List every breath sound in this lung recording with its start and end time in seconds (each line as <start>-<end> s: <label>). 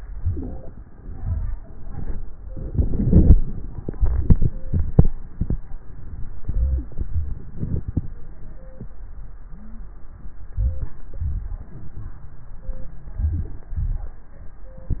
0.00-0.85 s: inhalation
0.00-0.85 s: crackles
0.86-1.71 s: exhalation
6.41-7.12 s: inhalation
7.07-8.05 s: exhalation
9.53-10.95 s: inhalation
9.53-10.95 s: wheeze
10.91-12.31 s: crackles
10.91-12.33 s: exhalation
13.12-13.73 s: inhalation
13.70-14.44 s: exhalation